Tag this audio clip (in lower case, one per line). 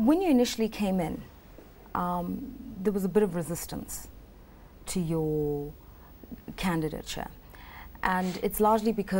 speech